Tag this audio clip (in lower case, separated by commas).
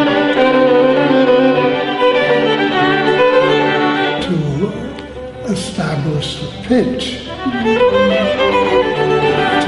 speech, music, bowed string instrument, fiddle